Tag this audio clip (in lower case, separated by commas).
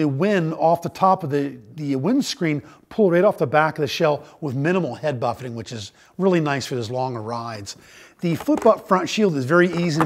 speech